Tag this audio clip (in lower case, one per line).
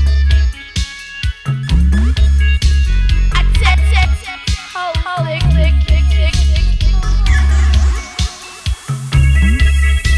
drum machine